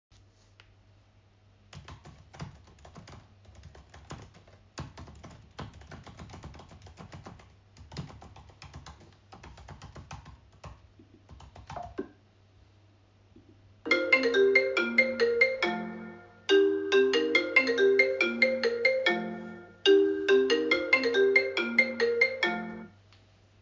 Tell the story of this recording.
I was typing on the keyboard. After finishing typing my phone started ringing and I stopped the ringing.